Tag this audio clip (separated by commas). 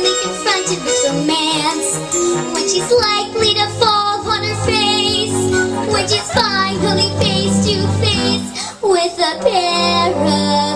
Female singing, Music